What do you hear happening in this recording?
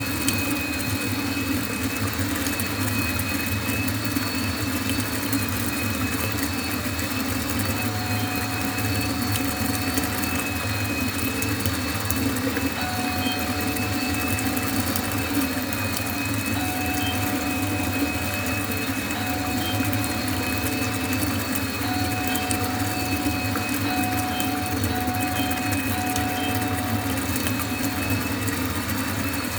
while I was taking a shower my roommate was cleaning the living room using a vacuum cleaner the door bell rang